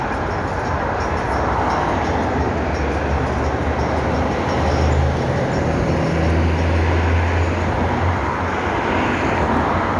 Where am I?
on a street